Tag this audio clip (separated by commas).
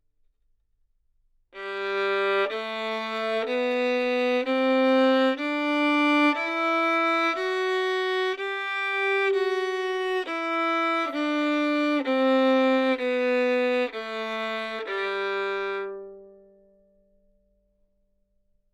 Musical instrument, Bowed string instrument, Music